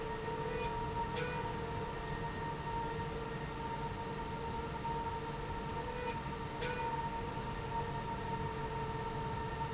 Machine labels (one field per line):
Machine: slide rail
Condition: normal